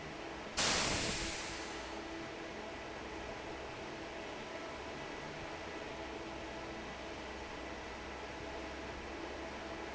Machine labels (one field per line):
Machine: fan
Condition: normal